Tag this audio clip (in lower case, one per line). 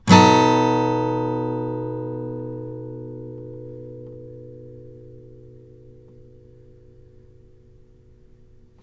musical instrument
plucked string instrument
music
guitar
acoustic guitar